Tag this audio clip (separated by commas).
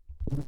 Wild animals, Animal, Buzz, Insect